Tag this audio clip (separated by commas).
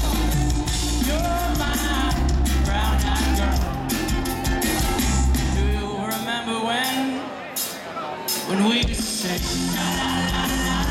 Music